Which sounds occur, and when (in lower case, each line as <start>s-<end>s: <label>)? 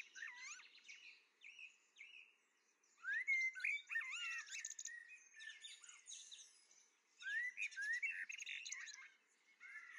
0.0s-9.9s: wind
0.1s-2.3s: bird
2.5s-2.7s: bird
2.8s-9.9s: bird